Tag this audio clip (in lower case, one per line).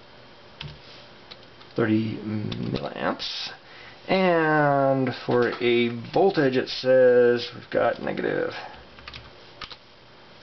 speech
inside a small room